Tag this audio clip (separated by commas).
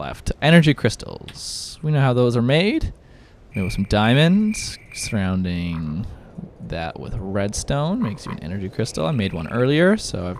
Speech